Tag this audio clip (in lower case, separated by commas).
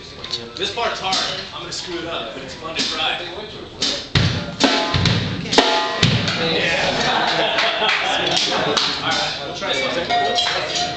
music, speech, bass drum, drum, drum kit, musical instrument